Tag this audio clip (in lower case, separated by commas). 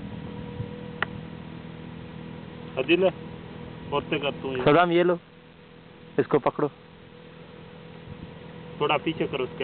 speech